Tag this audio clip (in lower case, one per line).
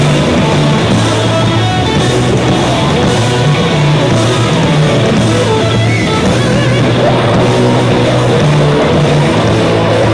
music